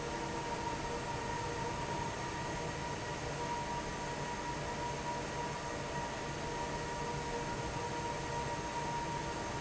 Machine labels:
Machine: fan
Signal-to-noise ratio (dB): -6 dB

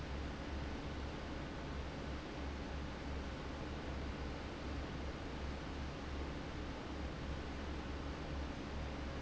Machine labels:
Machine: fan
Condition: abnormal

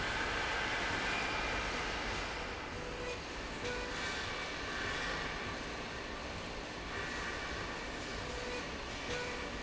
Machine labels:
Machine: slide rail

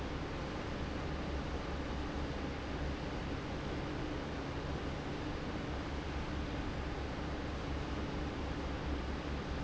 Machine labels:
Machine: fan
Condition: normal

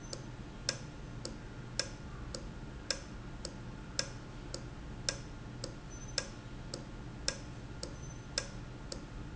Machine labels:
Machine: valve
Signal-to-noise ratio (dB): 0 dB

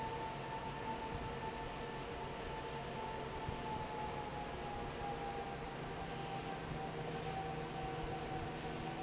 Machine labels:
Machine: fan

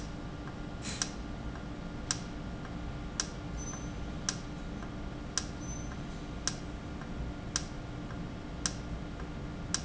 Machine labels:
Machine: valve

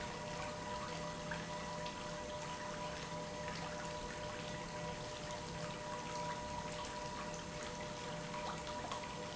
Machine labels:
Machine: pump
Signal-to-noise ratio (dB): 0 dB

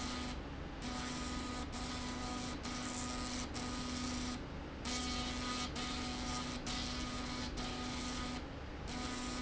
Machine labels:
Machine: slide rail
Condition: abnormal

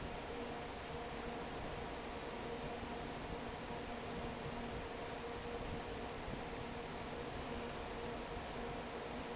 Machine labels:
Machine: fan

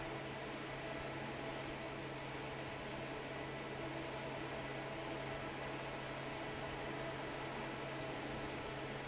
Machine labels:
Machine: fan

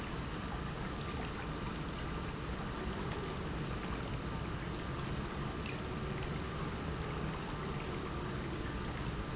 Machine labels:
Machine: pump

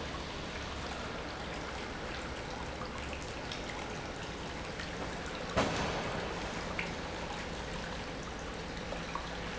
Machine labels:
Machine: pump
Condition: normal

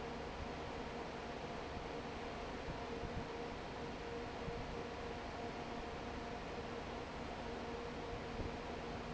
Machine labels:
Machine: fan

